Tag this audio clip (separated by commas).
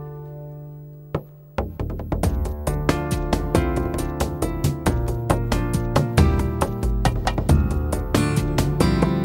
Music